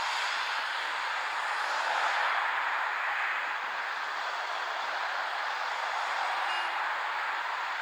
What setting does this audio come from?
street